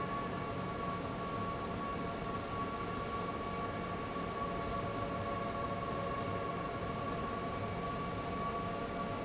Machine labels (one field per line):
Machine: fan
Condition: abnormal